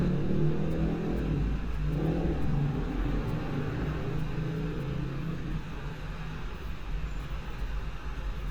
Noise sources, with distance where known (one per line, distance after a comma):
medium-sounding engine, near